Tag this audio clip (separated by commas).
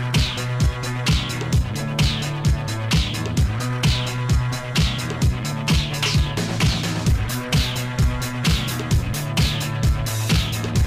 Music